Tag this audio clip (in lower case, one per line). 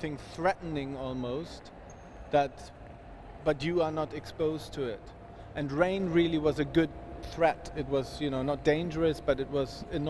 speech